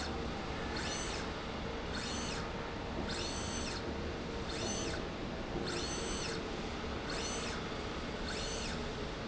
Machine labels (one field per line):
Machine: slide rail